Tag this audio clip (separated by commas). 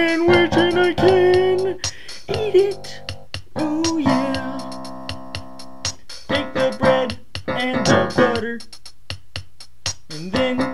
Speech, Music